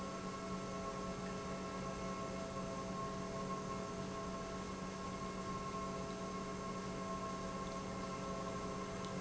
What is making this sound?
pump